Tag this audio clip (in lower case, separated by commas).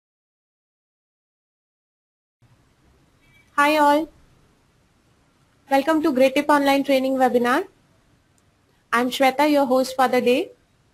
speech, inside a small room